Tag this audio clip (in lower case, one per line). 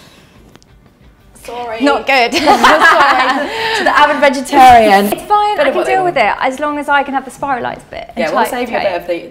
speech